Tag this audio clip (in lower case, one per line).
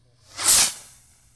explosion
fireworks